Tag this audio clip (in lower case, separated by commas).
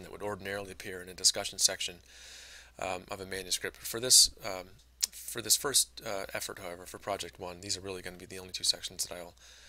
speech